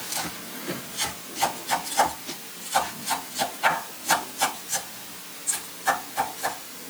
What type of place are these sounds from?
kitchen